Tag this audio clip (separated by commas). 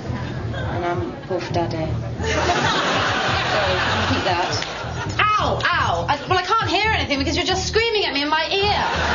Music, Speech